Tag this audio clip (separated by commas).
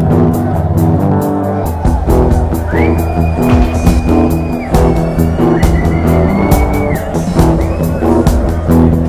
speech babble, Music